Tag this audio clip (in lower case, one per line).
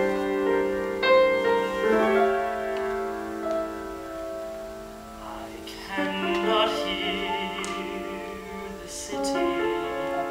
piano
singing
musical instrument